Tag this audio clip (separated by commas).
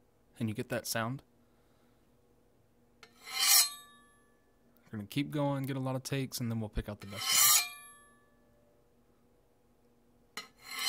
Speech